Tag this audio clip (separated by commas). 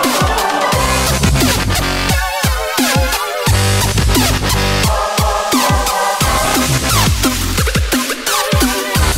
Electronic music, Dubstep, Music